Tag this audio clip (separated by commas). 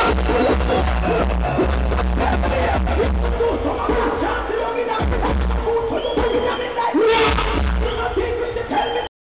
Music, Crowd